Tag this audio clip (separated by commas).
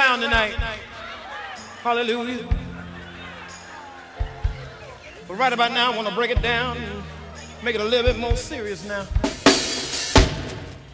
Singing